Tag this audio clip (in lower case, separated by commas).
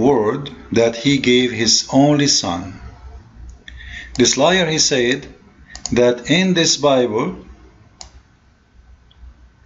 clicking